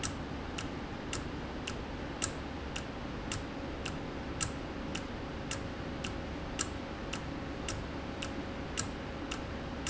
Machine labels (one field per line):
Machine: valve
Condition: normal